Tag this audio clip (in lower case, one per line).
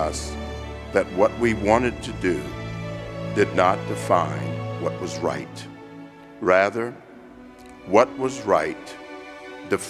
music
male speech
speech
narration